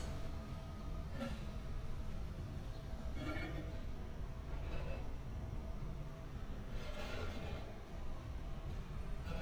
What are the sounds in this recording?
background noise